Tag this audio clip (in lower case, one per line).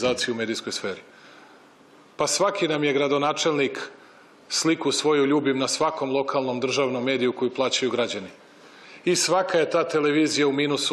speech